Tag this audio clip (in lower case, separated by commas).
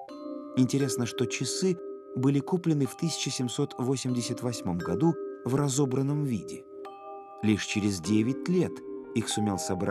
speech, music